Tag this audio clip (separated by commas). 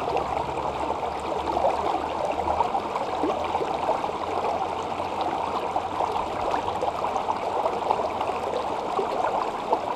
stream burbling